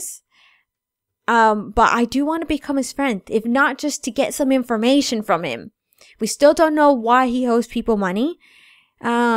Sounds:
monologue, speech

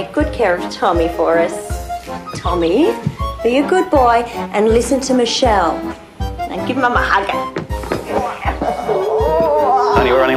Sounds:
music, speech

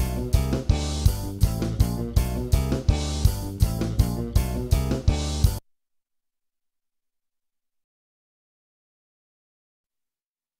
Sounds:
playing synthesizer

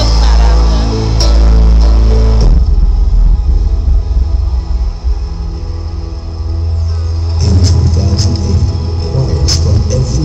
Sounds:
sound effect, music, speech

